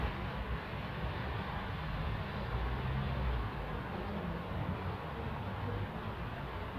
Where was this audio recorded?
in a residential area